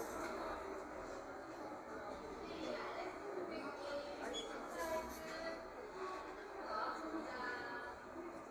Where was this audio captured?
in a cafe